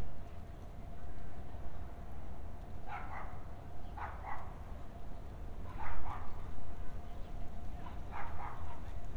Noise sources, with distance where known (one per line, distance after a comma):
dog barking or whining, near